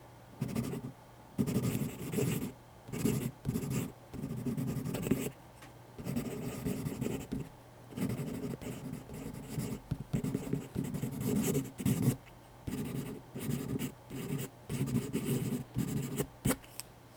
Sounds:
Domestic sounds, Writing

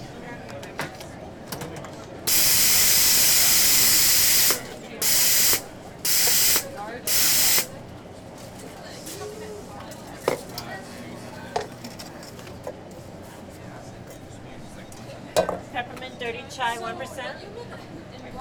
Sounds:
Hiss

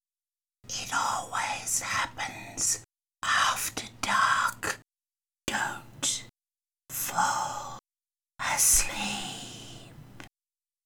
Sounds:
Human voice, Whispering

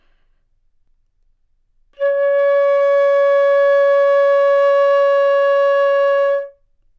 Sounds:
woodwind instrument, Music, Musical instrument

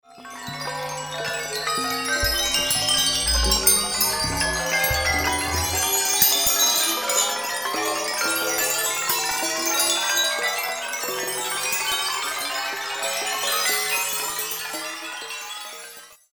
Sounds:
Bell, Chime

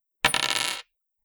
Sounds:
Domestic sounds, Coin (dropping)

